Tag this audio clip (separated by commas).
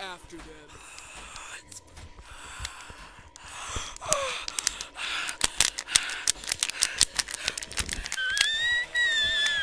Speech